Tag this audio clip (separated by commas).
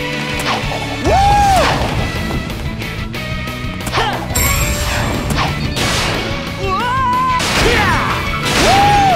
Music